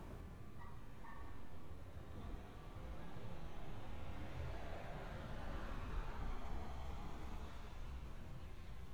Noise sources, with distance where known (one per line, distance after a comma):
dog barking or whining